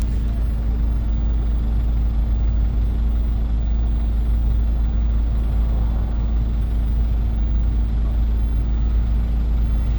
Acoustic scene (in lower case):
bus